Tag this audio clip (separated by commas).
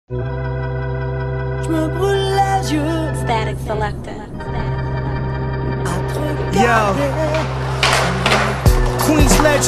Music, Skateboard